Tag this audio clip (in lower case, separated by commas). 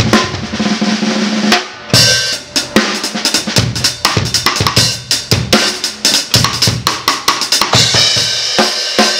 drum kit, musical instrument, hi-hat, music, bass drum, drum, cymbal, percussion